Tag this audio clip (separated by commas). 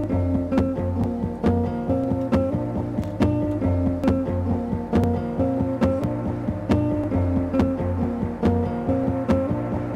Music